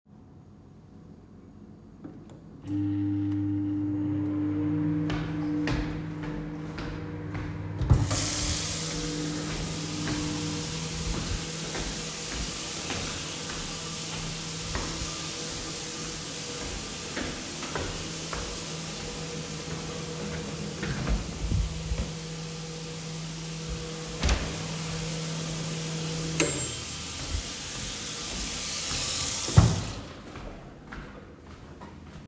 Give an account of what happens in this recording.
I started the microwave and walked to the sink to turn on the water. While the microwave was running and water was flowing, I walked to the fridge, opened and closed it. Finally, I stopped the microwave and turned off the tap.